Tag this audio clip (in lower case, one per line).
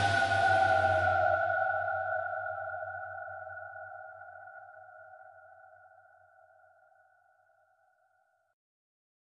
music
silence